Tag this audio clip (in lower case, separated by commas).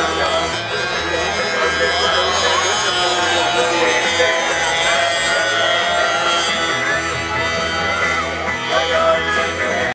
music, speech, vehicle